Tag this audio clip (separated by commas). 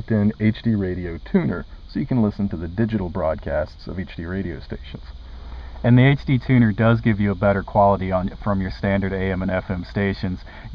Speech